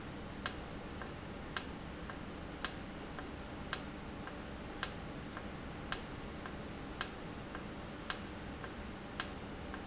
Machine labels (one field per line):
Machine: valve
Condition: normal